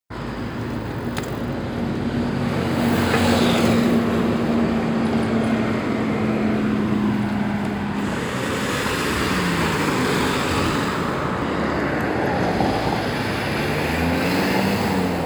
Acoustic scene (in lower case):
street